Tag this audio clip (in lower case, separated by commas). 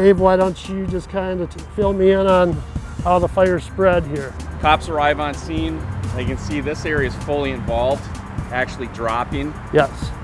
music, speech